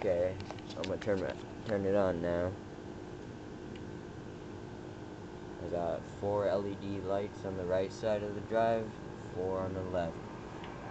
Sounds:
Speech

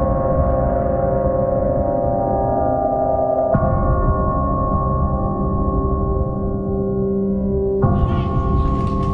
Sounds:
Gong

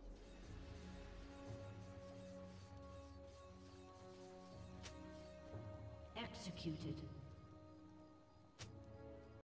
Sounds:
Speech

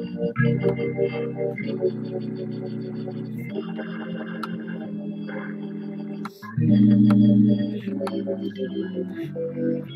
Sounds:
Musical instrument, Music, Plucked string instrument, Guitar, Strum, Electric guitar

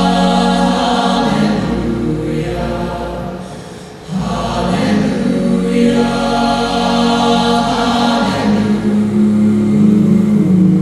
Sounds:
Singing, Vocal music, Music

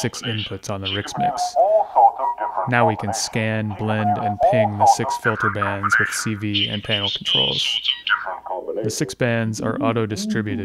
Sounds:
Speech

